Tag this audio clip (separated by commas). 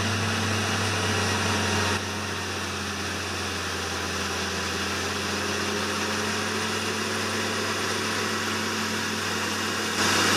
Vehicle